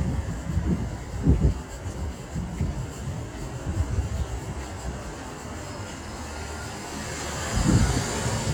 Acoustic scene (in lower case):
street